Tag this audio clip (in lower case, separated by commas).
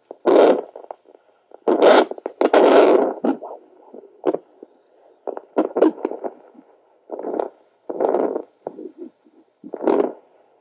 heart sounds